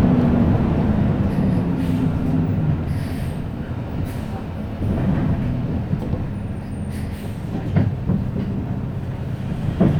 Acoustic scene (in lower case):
bus